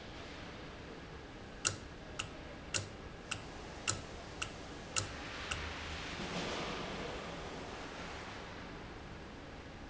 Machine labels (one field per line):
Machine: valve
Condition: normal